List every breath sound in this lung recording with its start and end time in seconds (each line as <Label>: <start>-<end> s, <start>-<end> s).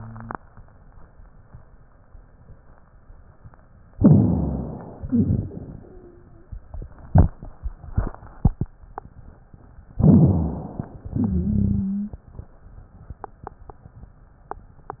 Inhalation: 3.93-5.05 s, 10.00-11.10 s
Exhalation: 5.07-6.53 s, 11.14-12.24 s
Wheeze: 5.77-6.55 s, 11.14-12.24 s
Rhonchi: 3.91-5.03 s, 10.00-11.10 s
Crackles: 5.07-5.66 s